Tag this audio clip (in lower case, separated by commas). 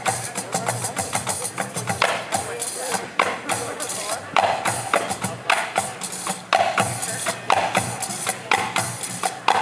music, speech